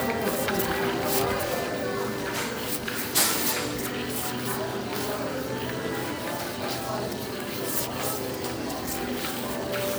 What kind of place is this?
crowded indoor space